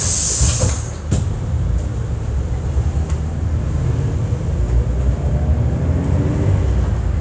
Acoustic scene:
bus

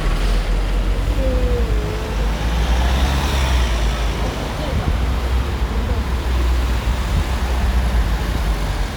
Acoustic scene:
street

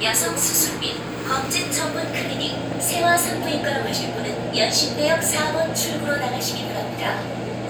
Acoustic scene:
subway train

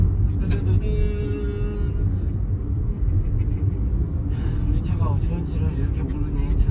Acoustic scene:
car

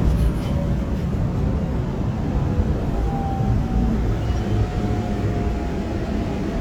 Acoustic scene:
subway train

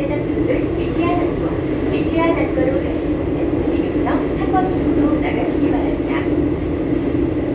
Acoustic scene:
subway train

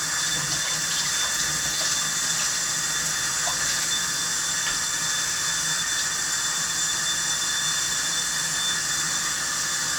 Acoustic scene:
kitchen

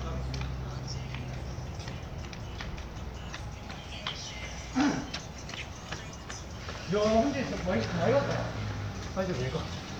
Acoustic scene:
residential area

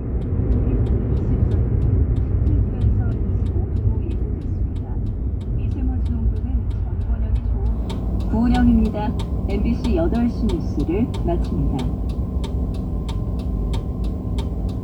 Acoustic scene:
car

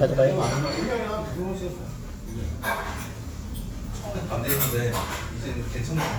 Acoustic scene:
crowded indoor space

